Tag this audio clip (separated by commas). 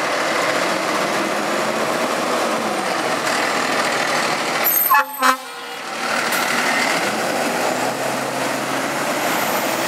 Engine, Heavy engine (low frequency), Truck, Vehicle, Accelerating